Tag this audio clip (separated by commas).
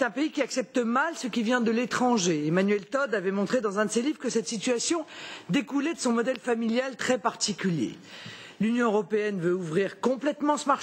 Speech